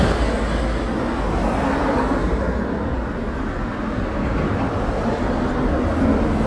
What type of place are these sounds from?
residential area